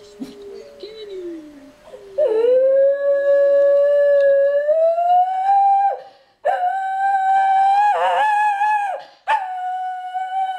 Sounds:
dog, animal, speech, pets

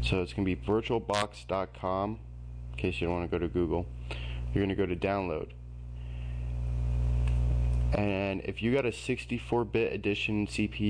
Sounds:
speech

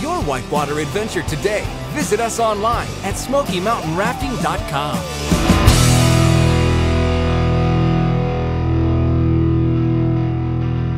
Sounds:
music, speech

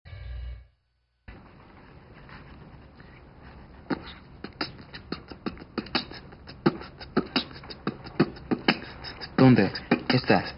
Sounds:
beatboxing, speech

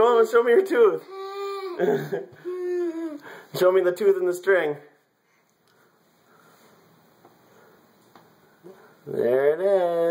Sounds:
speech

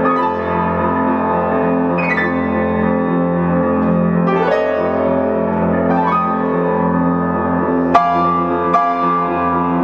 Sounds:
music

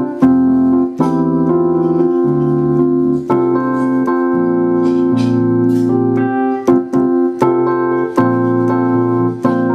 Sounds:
hammond organ, music, musical instrument, piano, keyboard (musical)

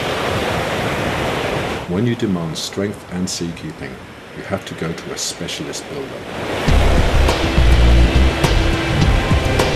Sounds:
waves, music, speech, outside, rural or natural

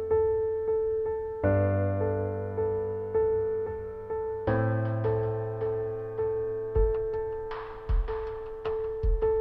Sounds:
music

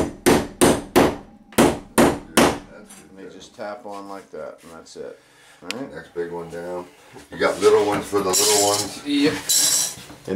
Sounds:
speech, wood

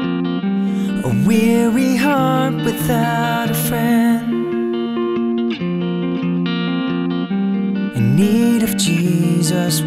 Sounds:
rhythm and blues, music

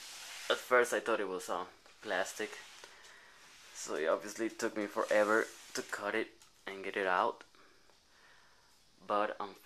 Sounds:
speech, inside a small room

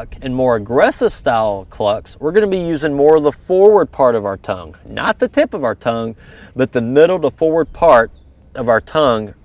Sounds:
speech

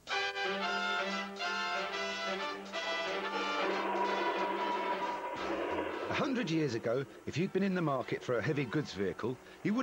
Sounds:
speech, music

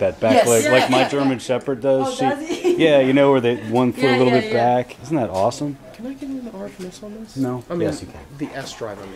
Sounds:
speech

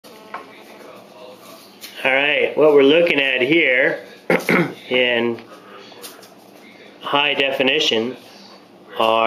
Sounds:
inside a small room, speech

